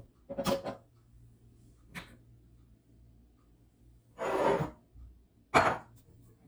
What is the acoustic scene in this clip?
kitchen